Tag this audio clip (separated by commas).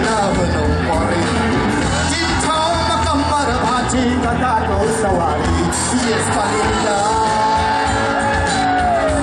Crowd, Music, Singing